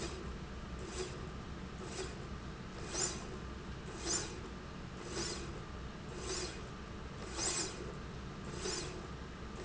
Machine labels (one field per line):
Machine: slide rail